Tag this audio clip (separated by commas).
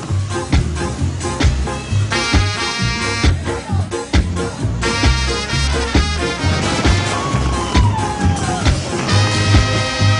Music